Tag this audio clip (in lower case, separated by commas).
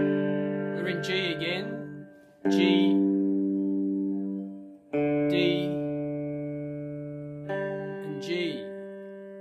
speech, music, distortion